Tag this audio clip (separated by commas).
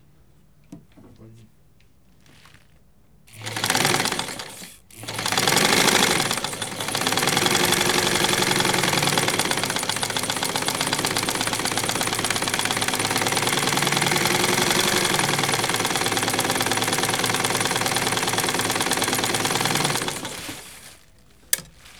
Engine, Mechanisms